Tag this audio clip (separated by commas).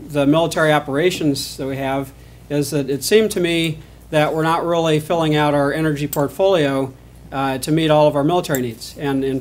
Speech